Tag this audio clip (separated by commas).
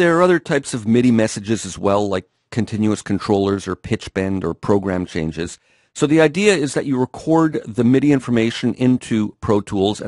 Speech